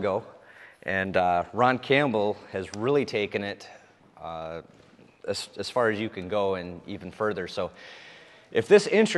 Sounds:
speech

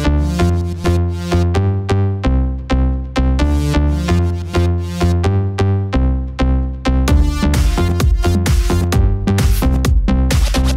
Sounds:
music, pop music

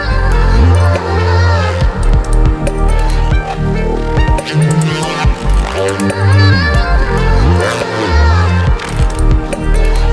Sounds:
music, dubstep, electronic music

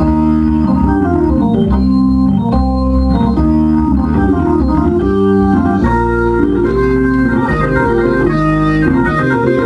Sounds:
playing hammond organ

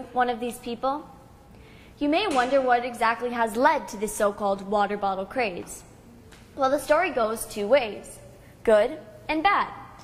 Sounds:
speech, woman speaking, child speech, monologue

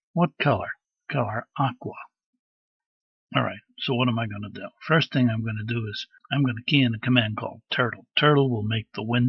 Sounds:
speech

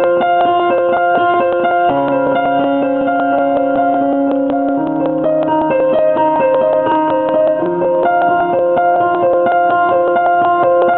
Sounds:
music, echo

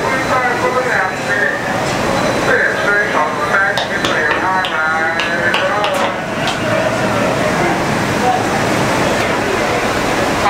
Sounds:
speech

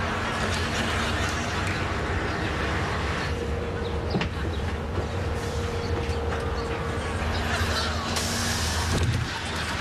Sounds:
vehicle, bus

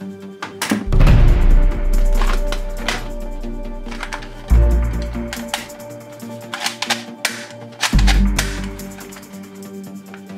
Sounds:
cap gun shooting

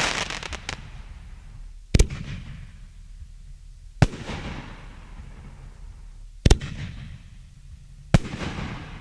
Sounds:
fireworks, fireworks banging

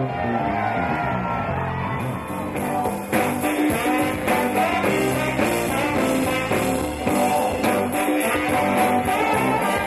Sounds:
rock and roll, music

